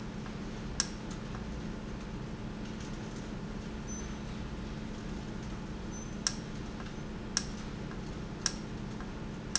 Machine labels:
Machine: valve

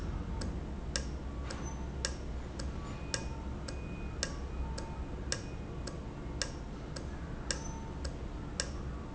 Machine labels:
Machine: valve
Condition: normal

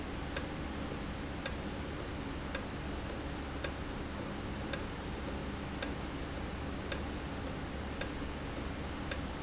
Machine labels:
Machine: valve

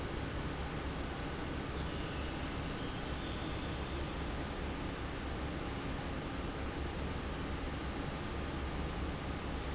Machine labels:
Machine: fan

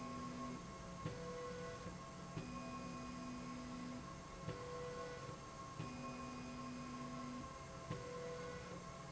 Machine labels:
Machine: slide rail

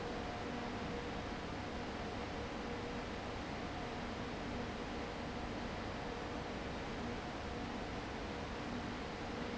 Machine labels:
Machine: fan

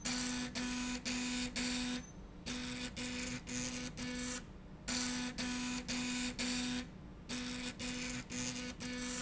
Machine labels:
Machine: slide rail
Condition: abnormal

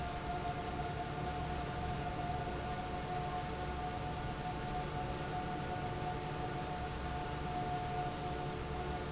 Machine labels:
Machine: fan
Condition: normal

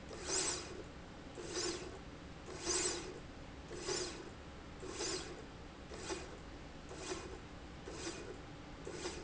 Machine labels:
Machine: slide rail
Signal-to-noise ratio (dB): 6 dB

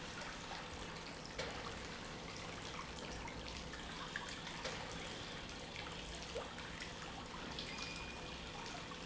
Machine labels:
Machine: pump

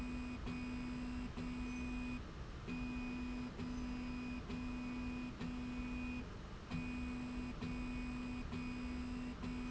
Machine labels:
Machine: slide rail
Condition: normal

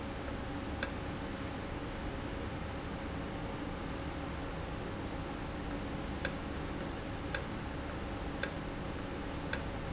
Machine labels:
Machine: valve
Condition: normal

